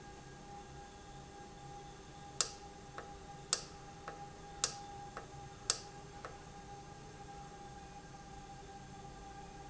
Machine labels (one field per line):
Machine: valve